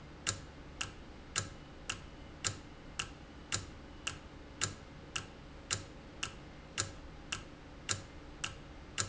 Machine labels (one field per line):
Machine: valve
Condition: normal